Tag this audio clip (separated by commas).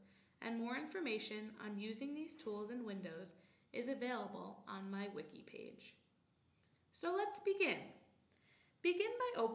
Speech